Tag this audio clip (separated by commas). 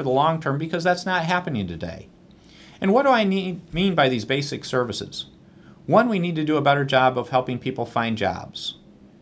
Speech